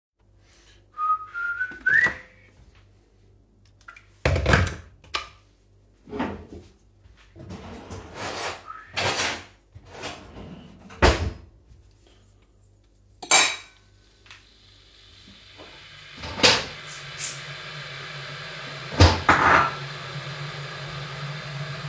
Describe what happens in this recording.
the phone lies on the kitchen counter I whistle and put on the water boiler